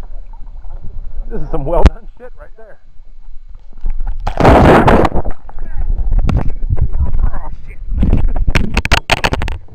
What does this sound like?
Adult male begins speaking followed by muffled wind